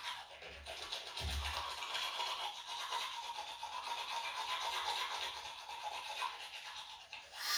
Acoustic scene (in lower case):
restroom